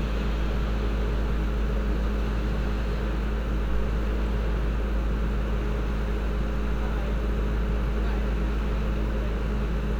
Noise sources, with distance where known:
engine of unclear size, near
person or small group talking, near

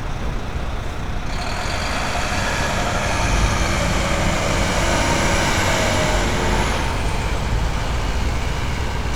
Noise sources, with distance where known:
large-sounding engine, near

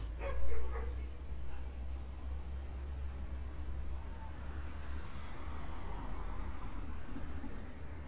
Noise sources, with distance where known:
dog barking or whining

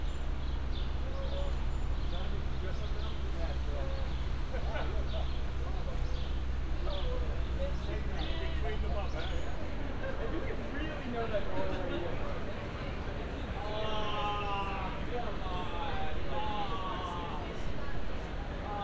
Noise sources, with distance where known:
person or small group talking

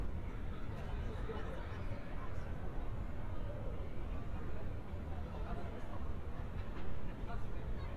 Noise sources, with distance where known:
person or small group talking, far

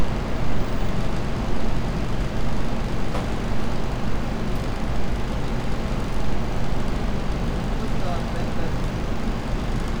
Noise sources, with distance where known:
engine of unclear size
unidentified impact machinery
person or small group talking, near

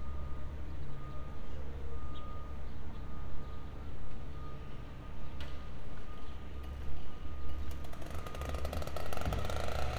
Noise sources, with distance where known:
engine of unclear size

